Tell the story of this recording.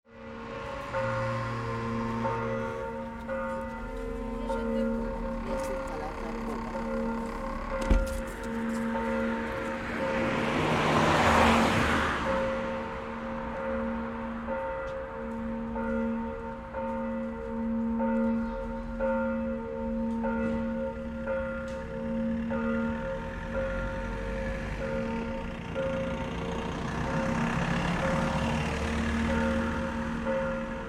I got up and walked across the living room toward the front door. I pressed the doorbell and heard it ring out clearly. I waited by the door to see if anyone would answer.